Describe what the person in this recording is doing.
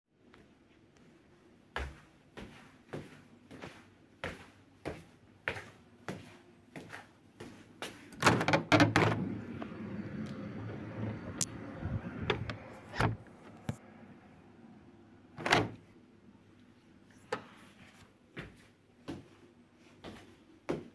Walking toward a window and opening and closing it before walking a little again.